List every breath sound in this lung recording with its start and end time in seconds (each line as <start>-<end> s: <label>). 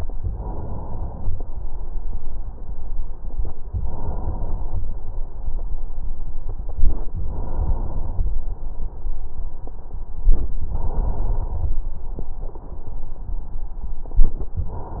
0.11-1.46 s: inhalation
3.66-4.81 s: inhalation
6.70-8.27 s: inhalation
10.32-11.89 s: inhalation
14.51-15.00 s: inhalation